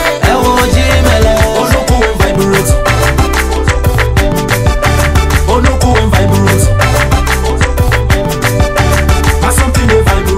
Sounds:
Music, Dance music

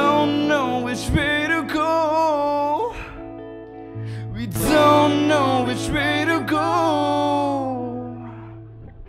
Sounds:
Music, Electronic tuner, outside, urban or man-made

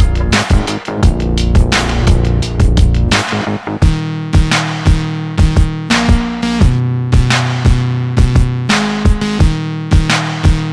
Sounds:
Music

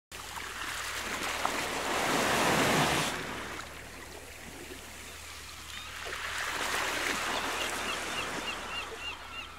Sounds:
Ocean

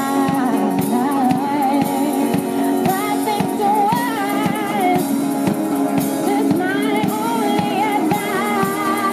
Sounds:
Music

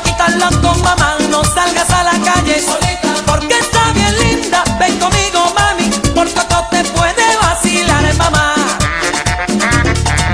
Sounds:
Music

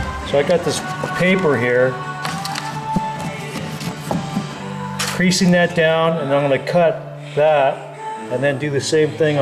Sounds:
Speech, Music

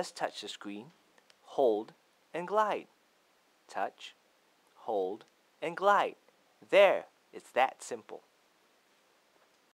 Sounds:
Speech

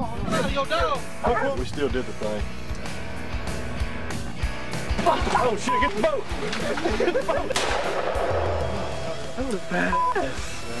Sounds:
Music, Speech

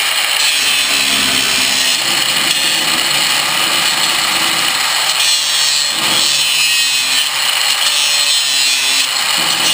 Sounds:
Power tool, Tools

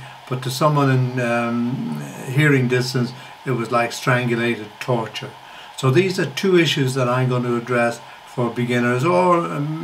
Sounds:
Speech, inside a small room

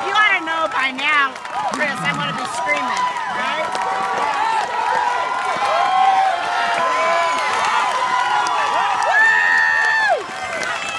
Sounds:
Rowboat, Water vehicle, Speech

